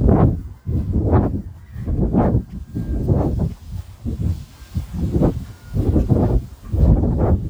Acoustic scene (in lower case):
park